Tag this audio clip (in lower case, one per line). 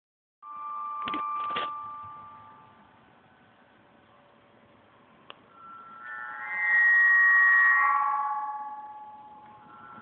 wind